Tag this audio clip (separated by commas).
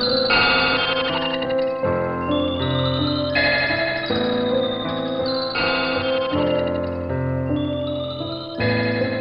outside, rural or natural, Music